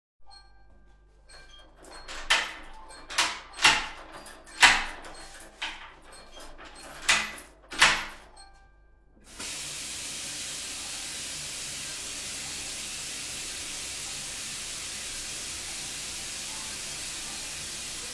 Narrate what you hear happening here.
phoned ringed and I opened the door